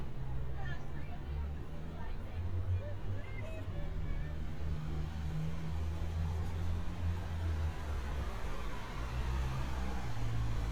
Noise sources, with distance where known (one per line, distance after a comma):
medium-sounding engine, near
person or small group talking, near